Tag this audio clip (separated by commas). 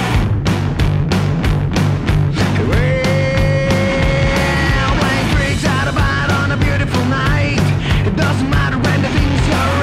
Soundtrack music, Punk rock, Rock and roll, Music